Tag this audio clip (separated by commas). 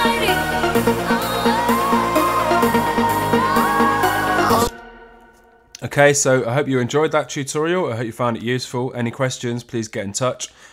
Music, Speech, Synthesizer, Musical instrument